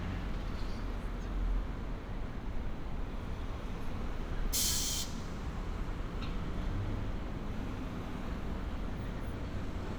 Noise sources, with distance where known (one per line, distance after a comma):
engine of unclear size, far